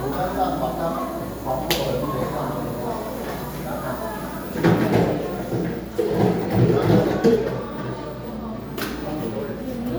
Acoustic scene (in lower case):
cafe